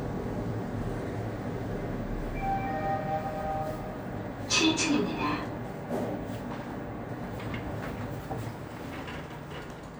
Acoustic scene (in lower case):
elevator